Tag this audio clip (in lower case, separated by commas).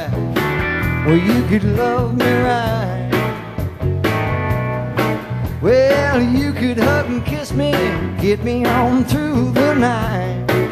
musical instrument, acoustic guitar, music, strum, plucked string instrument, guitar